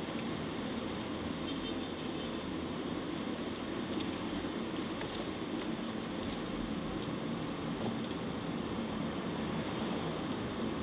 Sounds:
Vehicle

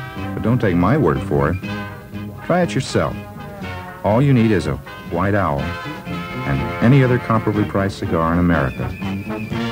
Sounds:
Speech, Music

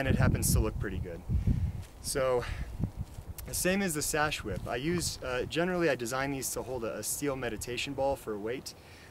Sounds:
Speech

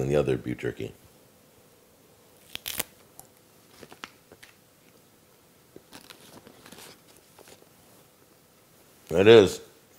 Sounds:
Speech, inside a small room, crinkling

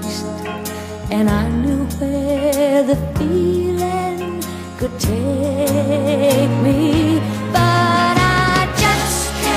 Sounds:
Music, Country

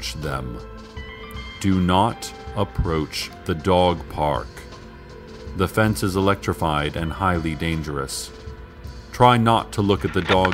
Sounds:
Music, Speech

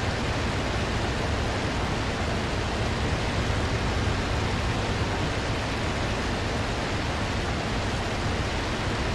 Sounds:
Fixed-wing aircraft, Aircraft

